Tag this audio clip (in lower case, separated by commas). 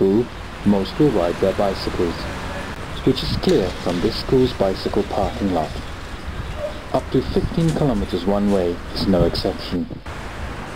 speech